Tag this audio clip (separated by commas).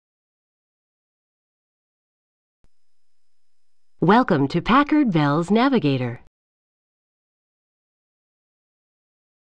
Speech